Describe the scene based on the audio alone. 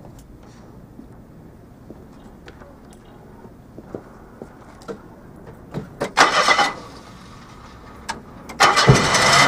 Rustling with footsteps and an engine starting